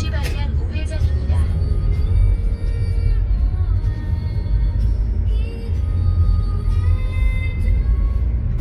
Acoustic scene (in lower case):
car